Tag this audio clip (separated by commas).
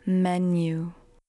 Human voice, Speech, Female speech